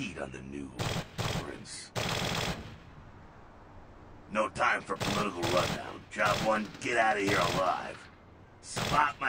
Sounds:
Gunshot, Machine gun

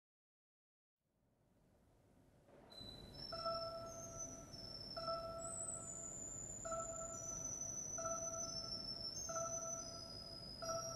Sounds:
Musical instrument, Music, Piano, Keyboard (musical)

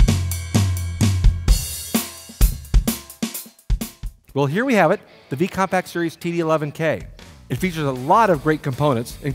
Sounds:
Music, Speech

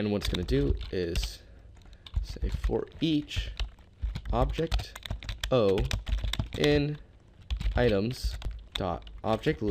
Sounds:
Typing

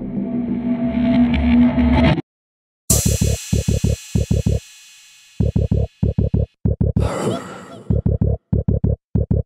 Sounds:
Music, Hip hop music

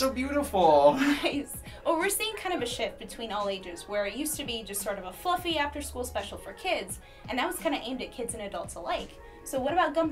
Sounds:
Speech

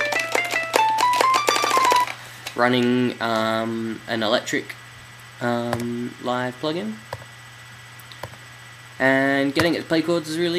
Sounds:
Speech, Music, Musical instrument

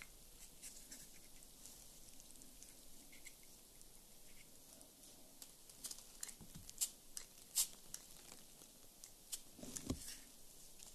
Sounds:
Spray

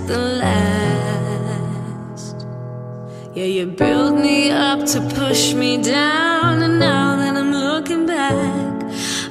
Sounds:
Music, House music

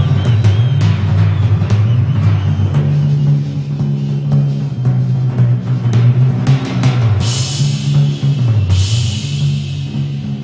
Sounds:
playing tympani

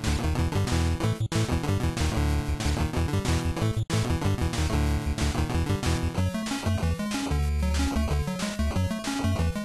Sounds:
Video game music, Music

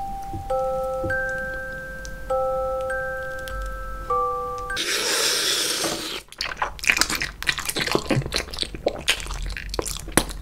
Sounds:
people eating noodle

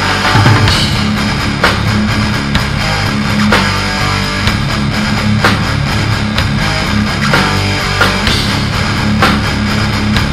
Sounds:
Music

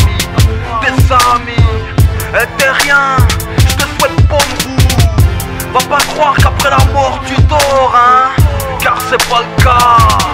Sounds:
Rapping, Music

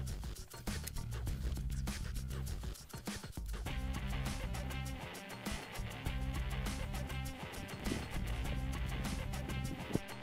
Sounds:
Music

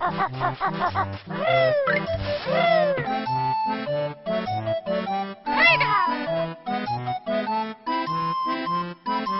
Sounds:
Speech, Music

